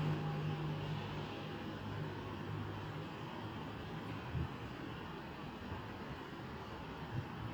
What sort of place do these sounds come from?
residential area